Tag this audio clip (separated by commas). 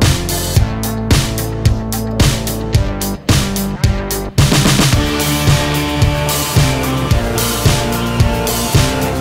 Music